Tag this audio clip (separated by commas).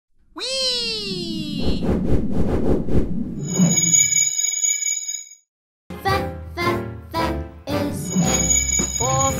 Music, Speech